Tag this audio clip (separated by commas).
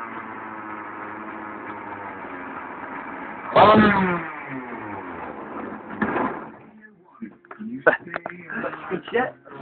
Speech, Medium engine (mid frequency), Engine starting, Vehicle, Idling